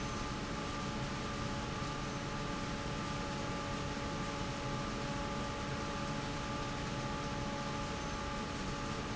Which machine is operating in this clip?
fan